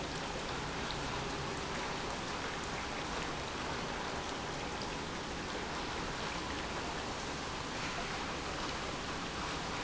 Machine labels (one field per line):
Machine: pump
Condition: normal